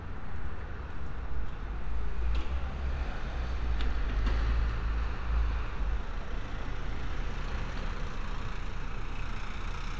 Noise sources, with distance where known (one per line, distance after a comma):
engine of unclear size, near